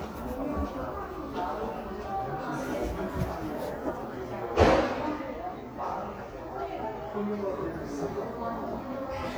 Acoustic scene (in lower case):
crowded indoor space